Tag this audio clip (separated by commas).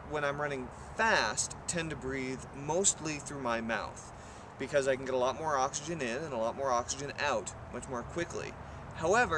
Speech